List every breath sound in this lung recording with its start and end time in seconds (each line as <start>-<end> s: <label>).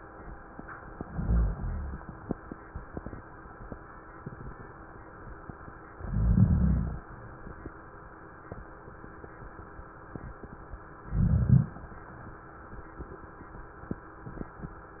1.04-1.99 s: inhalation
1.04-1.99 s: rhonchi
5.96-7.04 s: inhalation
5.96-7.04 s: rhonchi
11.10-11.75 s: inhalation
11.10-11.75 s: rhonchi